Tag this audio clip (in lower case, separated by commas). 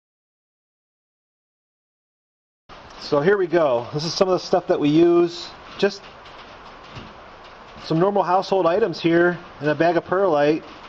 speech, inside a small room, silence